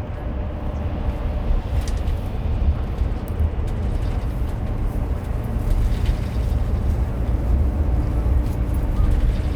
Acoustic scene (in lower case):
car